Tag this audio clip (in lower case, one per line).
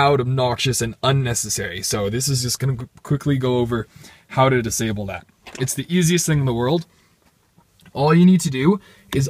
reversing beeps